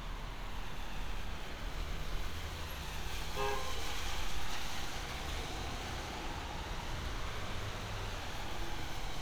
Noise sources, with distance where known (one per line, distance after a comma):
car horn, far